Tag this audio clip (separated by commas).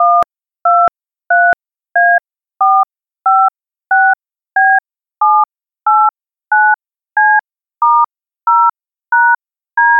Telephone, Alarm